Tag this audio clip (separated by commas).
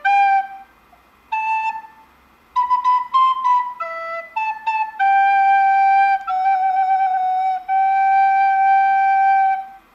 Flute, Music, Musical instrument, Wind instrument